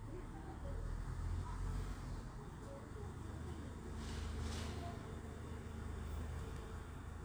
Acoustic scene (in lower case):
residential area